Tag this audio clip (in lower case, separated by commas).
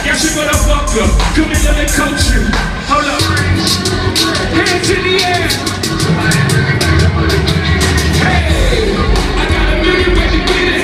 outside, urban or man-made, music, singing